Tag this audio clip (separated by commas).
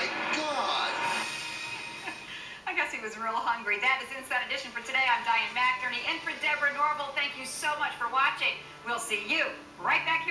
Speech, Music